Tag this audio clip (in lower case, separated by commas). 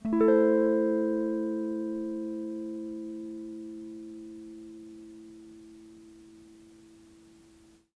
plucked string instrument, music, guitar, musical instrument